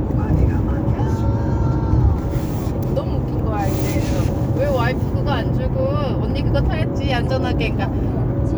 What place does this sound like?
car